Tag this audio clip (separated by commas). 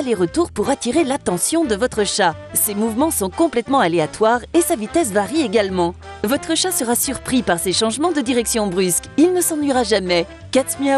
Music, Speech